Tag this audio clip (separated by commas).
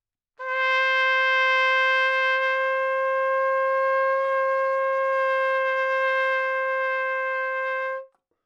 Musical instrument, Brass instrument, Music, Trumpet